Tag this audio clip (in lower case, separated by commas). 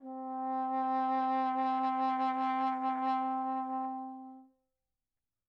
brass instrument, musical instrument, music